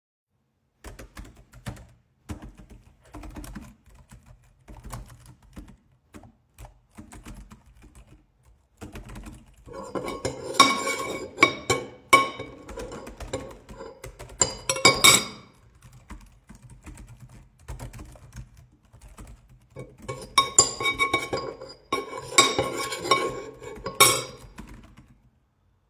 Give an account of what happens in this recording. I typed on the keyboard and stirred in a bowl with a spoon